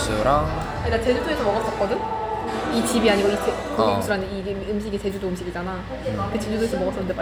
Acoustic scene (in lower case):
cafe